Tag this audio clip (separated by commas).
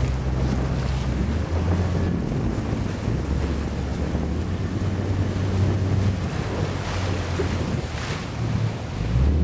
surf, Wind, Wind noise (microphone), Ocean, Sailboat, Water vehicle, sailing